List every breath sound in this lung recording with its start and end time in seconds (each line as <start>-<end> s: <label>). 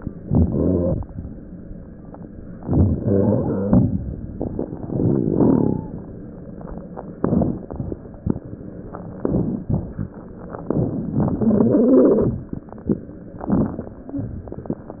0.14-1.08 s: inhalation
0.14-1.08 s: wheeze
2.50-4.23 s: inhalation
2.50-4.23 s: wheeze
4.82-5.92 s: inhalation
4.82-5.92 s: wheeze
7.16-7.74 s: inhalation
7.16-7.74 s: crackles
9.18-9.65 s: crackles
9.18-9.66 s: inhalation
9.67-10.32 s: exhalation
9.67-10.32 s: crackles
10.66-11.13 s: inhalation
10.66-11.13 s: crackles
11.15-12.54 s: wheeze
13.31-14.03 s: inhalation
13.31-14.03 s: crackles